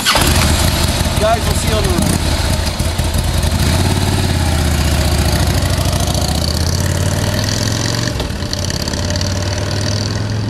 Motorcycle revving and driving away man speaks